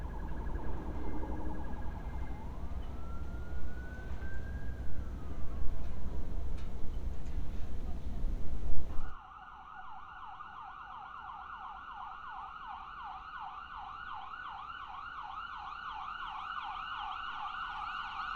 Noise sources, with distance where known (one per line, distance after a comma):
siren